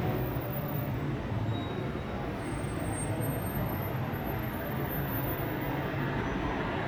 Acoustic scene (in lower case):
street